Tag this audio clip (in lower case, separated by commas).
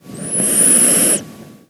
breathing, respiratory sounds